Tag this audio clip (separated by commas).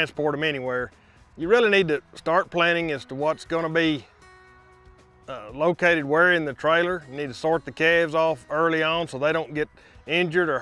Speech